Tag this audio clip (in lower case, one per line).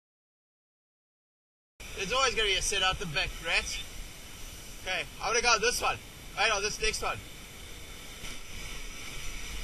speech